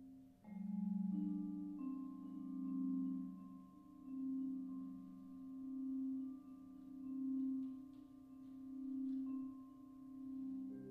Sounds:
xylophone, musical instrument, vibraphone, music

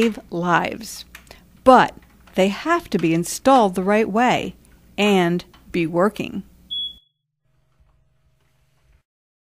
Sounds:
speech

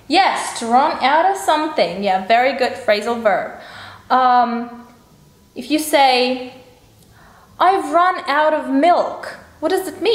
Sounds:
speech

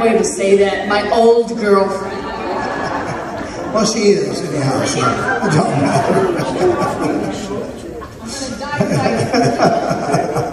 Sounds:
inside a large room or hall, speech

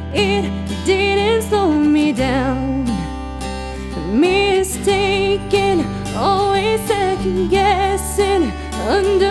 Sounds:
music, female singing

